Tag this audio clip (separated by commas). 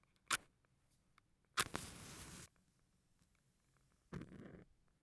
Fire